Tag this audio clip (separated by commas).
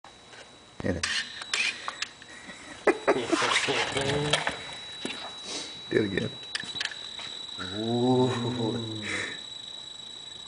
inside a small room, Speech